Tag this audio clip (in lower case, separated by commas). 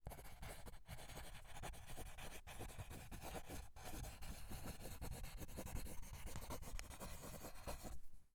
domestic sounds, writing